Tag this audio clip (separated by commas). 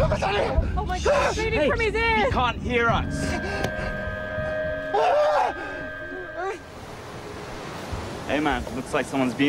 Vehicle, Speech